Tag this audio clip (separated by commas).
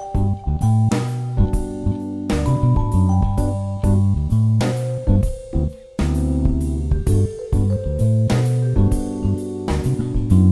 Music